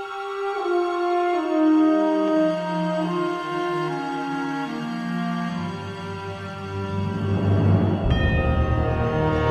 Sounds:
Music, Scary music

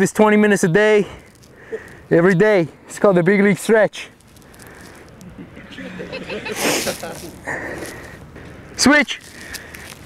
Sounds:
Speech

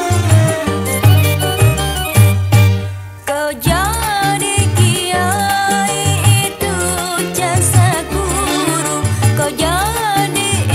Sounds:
Music

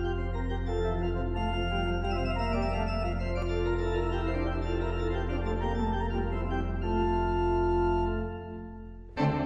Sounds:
playing electronic organ

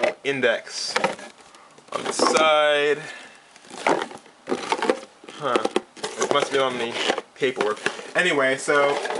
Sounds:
Speech

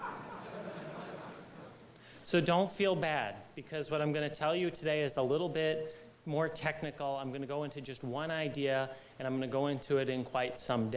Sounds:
Male speech, Speech, Narration

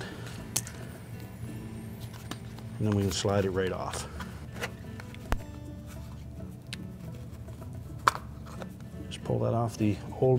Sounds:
Speech, Music

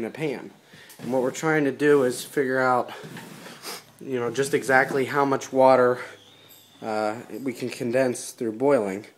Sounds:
Speech

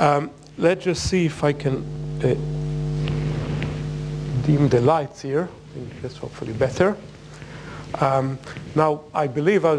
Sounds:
Speech

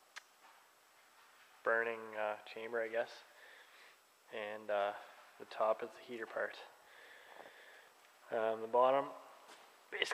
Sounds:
Speech

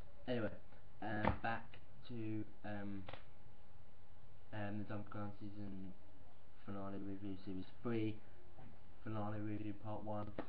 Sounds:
Speech

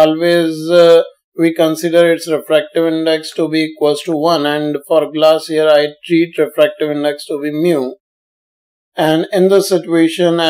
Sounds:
Speech

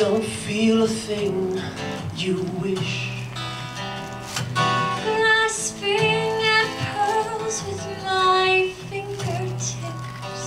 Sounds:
Music, Male singing, Female singing

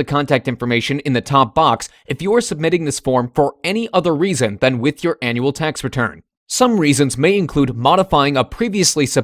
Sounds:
Speech

